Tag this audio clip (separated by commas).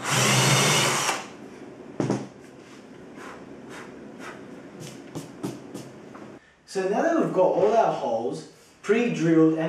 Tools, Speech, Wood